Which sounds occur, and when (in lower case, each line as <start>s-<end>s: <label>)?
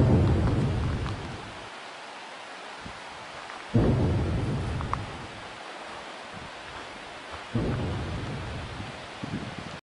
0.0s-1.2s: boom
0.0s-9.7s: wind
0.2s-0.5s: generic impact sounds
0.9s-1.1s: generic impact sounds
2.8s-3.0s: generic impact sounds
3.3s-3.6s: generic impact sounds
3.7s-5.1s: boom
4.6s-5.0s: generic impact sounds
6.3s-6.4s: generic impact sounds
6.7s-6.8s: generic impact sounds
7.2s-7.4s: generic impact sounds
7.5s-8.5s: boom
8.7s-8.9s: generic impact sounds
9.2s-9.7s: wind noise (microphone)